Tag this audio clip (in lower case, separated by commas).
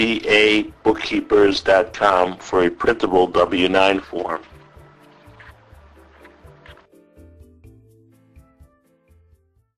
speech